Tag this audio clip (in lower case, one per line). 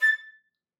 music
musical instrument
woodwind instrument